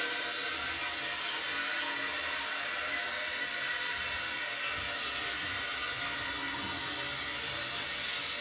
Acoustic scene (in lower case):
restroom